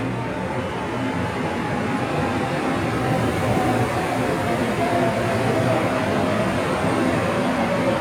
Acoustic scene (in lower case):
subway station